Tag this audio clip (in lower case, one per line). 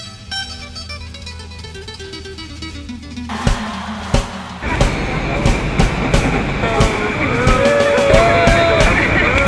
music